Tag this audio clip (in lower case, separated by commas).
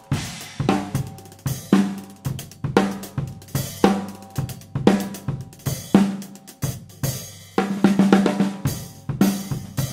cymbal, snare drum, musical instrument, hi-hat, music, drum kit, percussion, drum